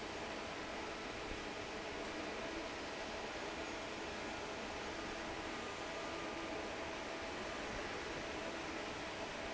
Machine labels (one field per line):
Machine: fan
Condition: normal